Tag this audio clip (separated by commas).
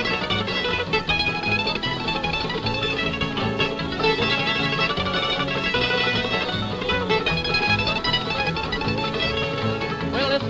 Country, Bluegrass, Music